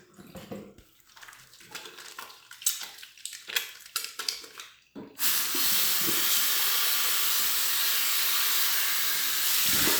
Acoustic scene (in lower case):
restroom